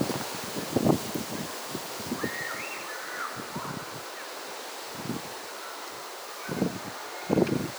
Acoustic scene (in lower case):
residential area